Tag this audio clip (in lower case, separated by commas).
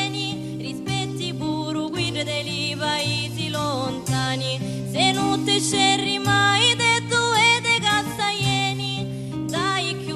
music